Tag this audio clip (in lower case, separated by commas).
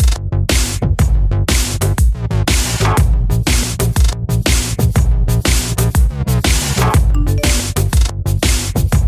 music